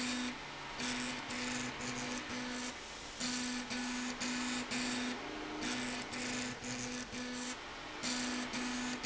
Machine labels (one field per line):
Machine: slide rail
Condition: abnormal